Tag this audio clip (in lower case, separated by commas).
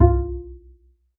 music, musical instrument, bowed string instrument